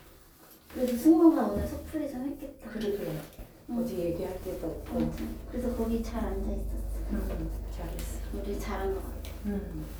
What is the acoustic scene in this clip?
elevator